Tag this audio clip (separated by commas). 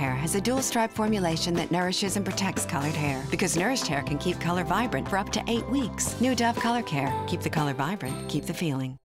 Music, Speech